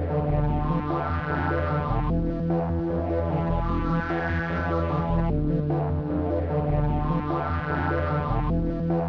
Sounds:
music

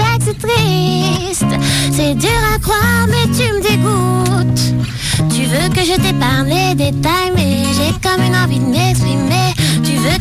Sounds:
music

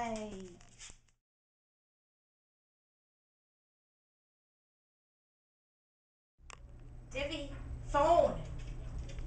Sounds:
speech

